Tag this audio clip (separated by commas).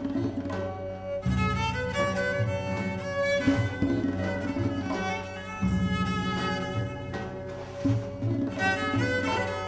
Music, Bowed string instrument